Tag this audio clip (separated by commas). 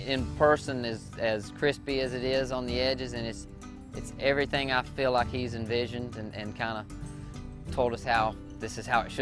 Music, Speech